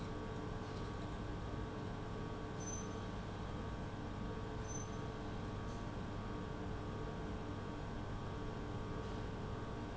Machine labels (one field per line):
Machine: pump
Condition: abnormal